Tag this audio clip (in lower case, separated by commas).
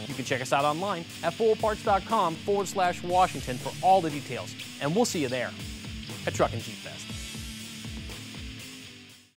music, speech